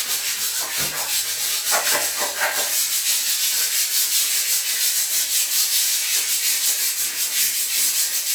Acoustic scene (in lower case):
restroom